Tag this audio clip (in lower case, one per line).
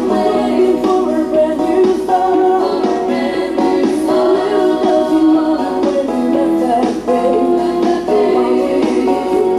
music